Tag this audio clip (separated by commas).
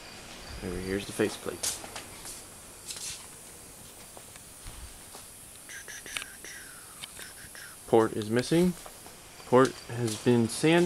Speech